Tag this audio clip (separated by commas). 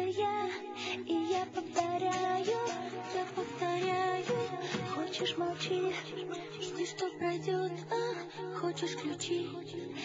Music